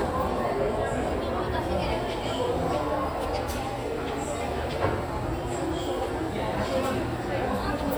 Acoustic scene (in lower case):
crowded indoor space